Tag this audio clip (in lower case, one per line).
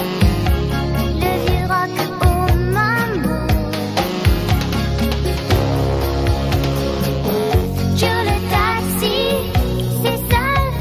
music
inside a large room or hall
singing